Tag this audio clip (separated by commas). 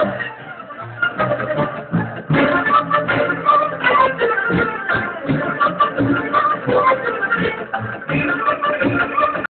Folk music, Music